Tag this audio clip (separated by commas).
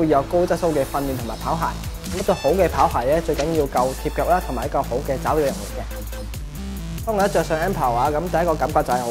Speech, Music